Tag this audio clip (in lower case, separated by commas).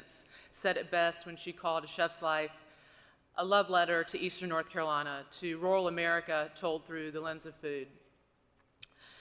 female speech, speech